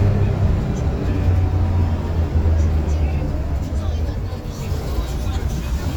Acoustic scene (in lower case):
bus